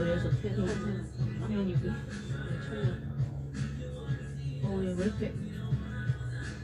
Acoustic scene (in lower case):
cafe